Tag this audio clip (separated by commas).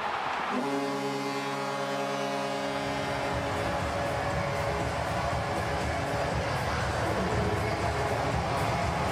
playing hockey